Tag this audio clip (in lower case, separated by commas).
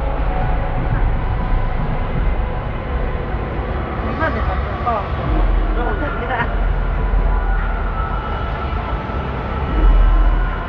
vehicle, speech